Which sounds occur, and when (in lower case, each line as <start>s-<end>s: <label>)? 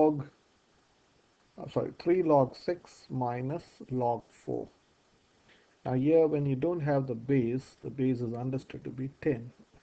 0.0s-0.3s: man speaking
0.0s-9.8s: background noise
1.7s-2.9s: man speaking
3.1s-3.7s: man speaking
3.9s-4.2s: man speaking
4.4s-4.8s: man speaking
5.8s-7.7s: man speaking
7.9s-9.6s: man speaking